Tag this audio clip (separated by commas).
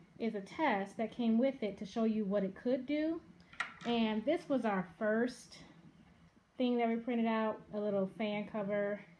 Speech